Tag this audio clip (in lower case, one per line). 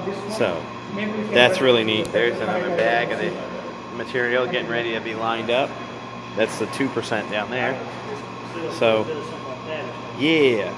speech